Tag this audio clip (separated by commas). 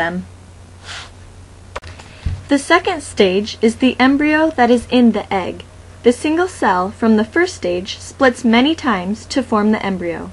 Speech